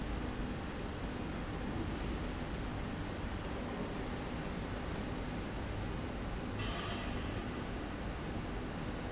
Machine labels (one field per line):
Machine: slide rail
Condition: normal